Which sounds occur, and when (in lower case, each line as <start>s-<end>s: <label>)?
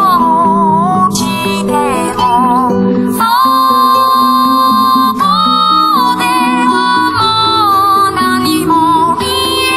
0.0s-9.7s: music